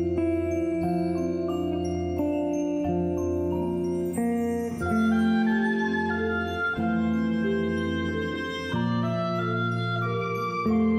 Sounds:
Music, Musical instrument, Orchestra

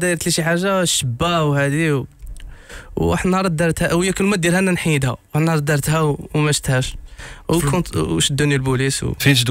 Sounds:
Speech

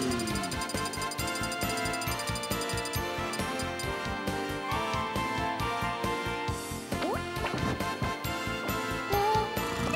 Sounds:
Music

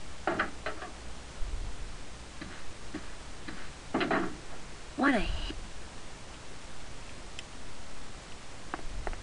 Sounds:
Speech

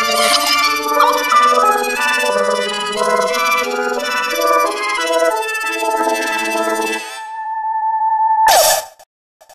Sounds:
Music

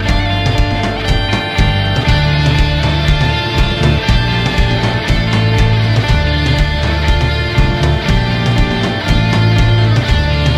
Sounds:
Plucked string instrument, Musical instrument, Music, Rock music, Guitar

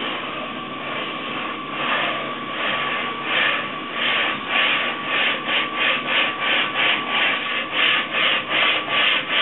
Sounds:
Rub

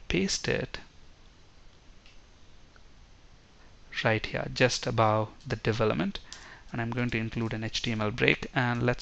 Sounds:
Clicking

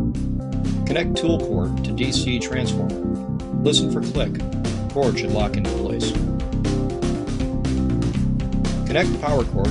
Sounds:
Speech, Music

